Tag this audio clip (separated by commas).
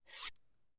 home sounds, Cutlery